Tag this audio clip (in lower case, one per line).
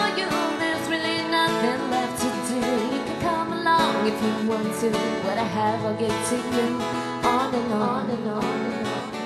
music